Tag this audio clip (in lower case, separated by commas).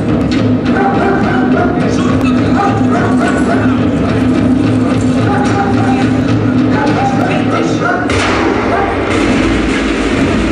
speech